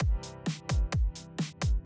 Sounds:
Keyboard (musical), Drum, Musical instrument, Piano, Percussion, Bass drum, Snare drum, Music

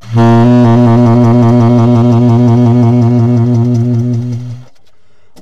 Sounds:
Musical instrument, Music, Wind instrument

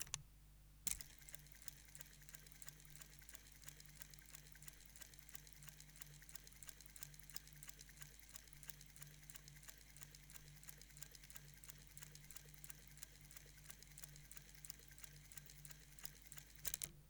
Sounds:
Mechanisms

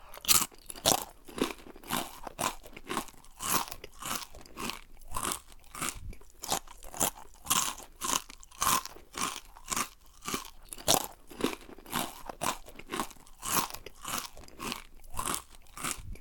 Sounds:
Chewing

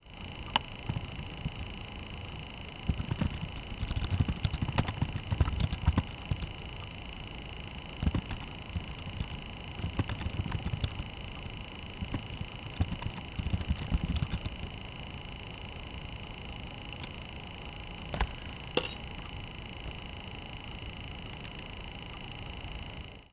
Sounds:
Typing, home sounds

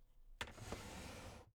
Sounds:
Drawer open or close, home sounds

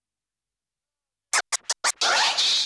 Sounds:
Musical instrument, Scratching (performance technique), Music

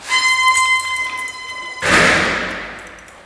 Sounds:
Squeak, Door, home sounds

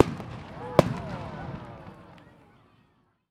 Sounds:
Explosion, Fireworks, Human group actions, Crowd

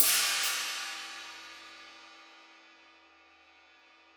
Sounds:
Musical instrument, Percussion, Music, Cymbal, Hi-hat

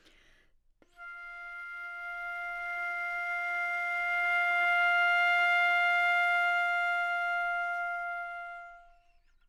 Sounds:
Music, woodwind instrument, Musical instrument

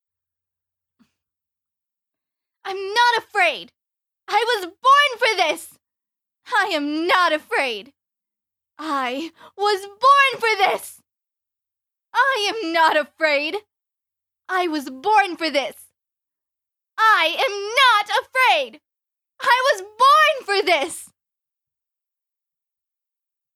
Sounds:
Shout, Human voice, Yell

